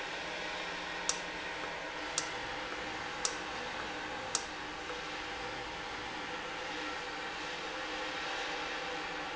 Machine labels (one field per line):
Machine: valve